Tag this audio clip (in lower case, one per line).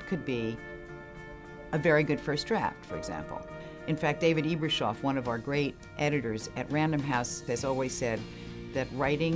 speech
music
inside a small room